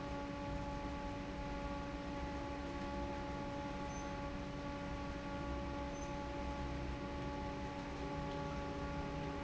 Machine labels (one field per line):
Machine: fan